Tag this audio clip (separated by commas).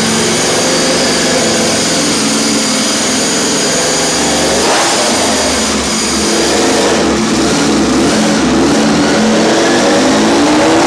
inside a small room, Motorcycle, Vehicle